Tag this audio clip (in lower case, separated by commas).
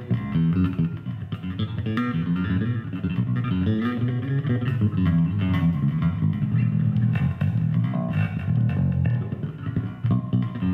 music, musical instrument, strum, guitar